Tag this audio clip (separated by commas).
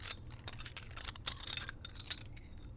Keys jangling, Domestic sounds